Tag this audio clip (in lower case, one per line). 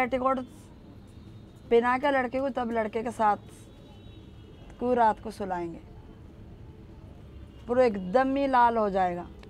speech